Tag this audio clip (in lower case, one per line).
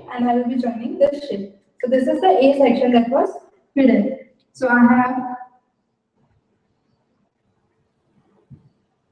speech